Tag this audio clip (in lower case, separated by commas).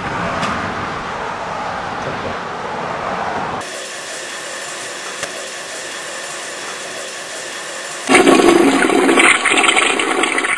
gurgling